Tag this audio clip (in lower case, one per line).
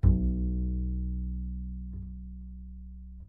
bowed string instrument
musical instrument
music